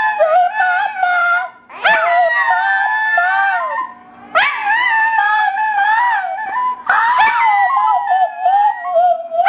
Many dogs howling at the same time